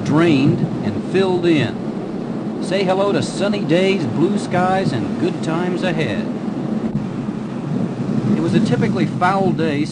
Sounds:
speech

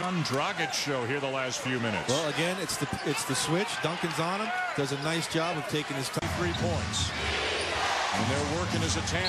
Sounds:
music, speech

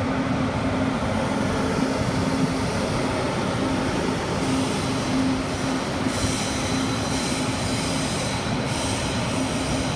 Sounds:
underground, train, railroad car, rail transport

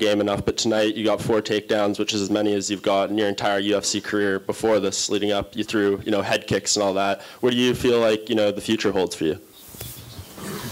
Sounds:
speech, inside a large room or hall

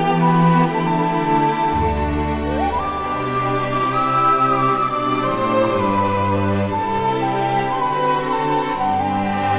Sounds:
music

